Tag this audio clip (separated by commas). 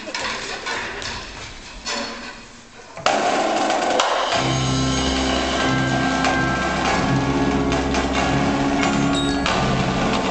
Wood block, Music